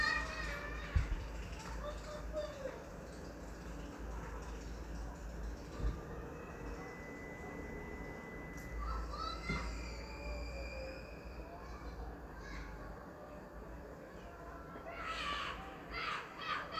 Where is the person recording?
in a residential area